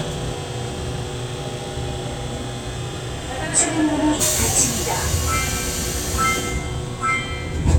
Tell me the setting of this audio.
subway train